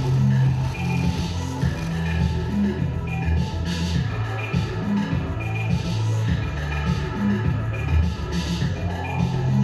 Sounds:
music

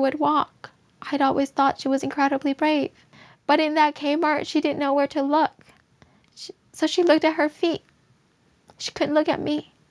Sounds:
speech

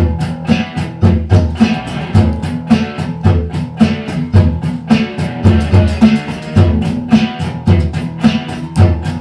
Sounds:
inside a small room, music, bass guitar, guitar

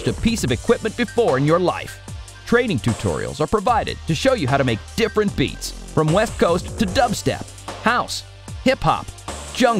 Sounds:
electronic music, music, speech, dubstep

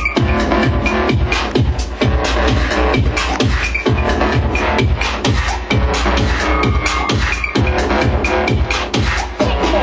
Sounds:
music, sound effect

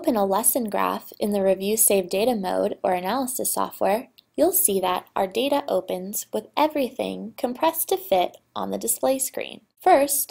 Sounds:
speech

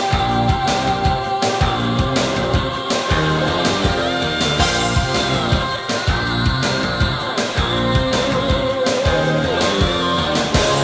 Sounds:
pop music, music

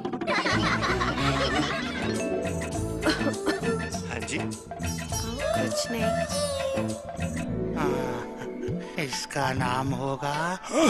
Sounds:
speech, throat clearing, music

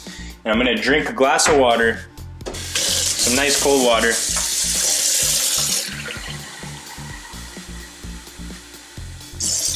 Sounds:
music, inside a small room, speech

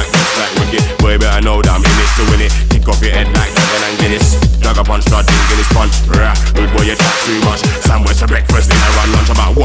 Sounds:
electronic music, music, dubstep

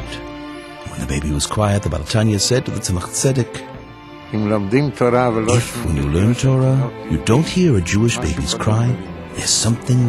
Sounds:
speech, music

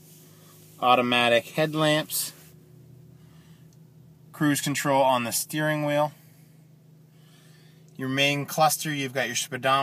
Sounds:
speech

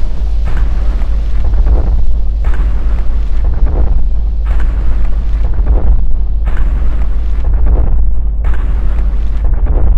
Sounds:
electronic music, boom, music

